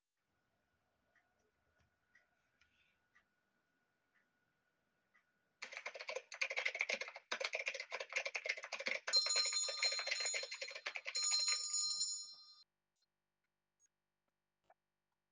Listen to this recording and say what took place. I was typing on my computer keyboard when a bell suddenly started ringing.(Device Placement mobile)